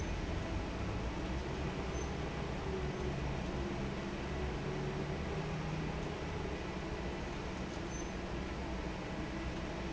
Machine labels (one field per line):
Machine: fan